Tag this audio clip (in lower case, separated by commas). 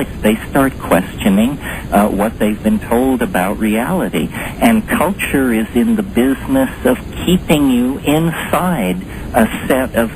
speech